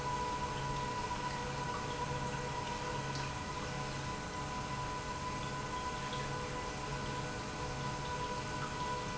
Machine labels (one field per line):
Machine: pump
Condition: normal